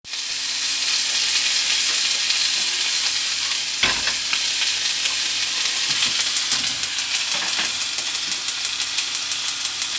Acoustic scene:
kitchen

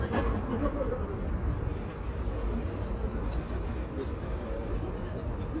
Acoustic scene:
park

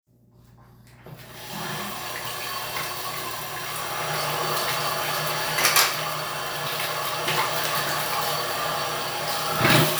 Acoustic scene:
restroom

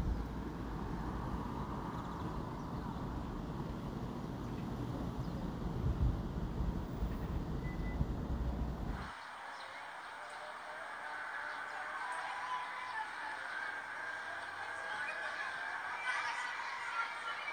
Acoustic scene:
residential area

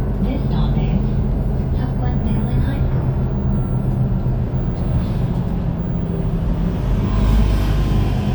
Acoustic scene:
bus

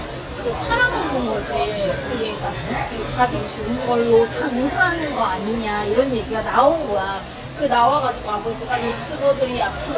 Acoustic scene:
restaurant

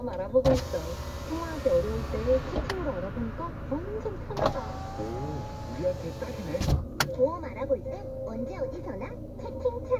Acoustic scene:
car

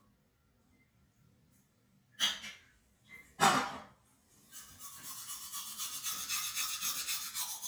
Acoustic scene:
restroom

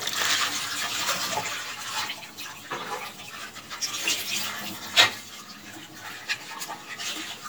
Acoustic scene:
kitchen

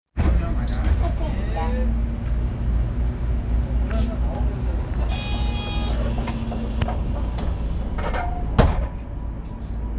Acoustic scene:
bus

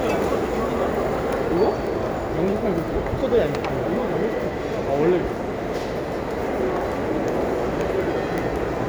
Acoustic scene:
restaurant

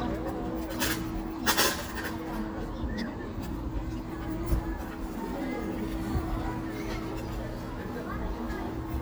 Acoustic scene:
park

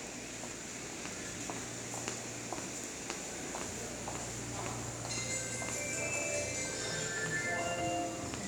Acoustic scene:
subway station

